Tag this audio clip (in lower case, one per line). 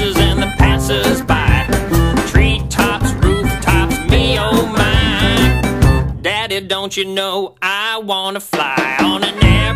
music